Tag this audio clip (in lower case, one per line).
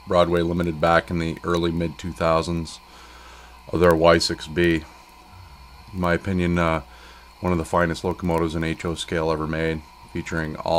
speech